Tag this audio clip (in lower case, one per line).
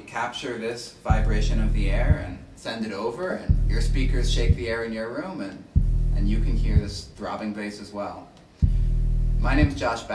speech